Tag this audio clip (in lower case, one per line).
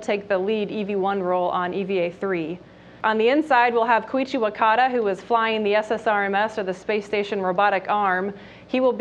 speech